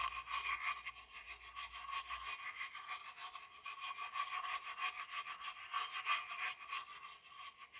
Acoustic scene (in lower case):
restroom